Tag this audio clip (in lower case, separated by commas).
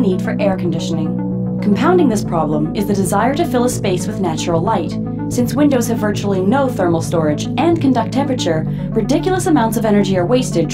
music, speech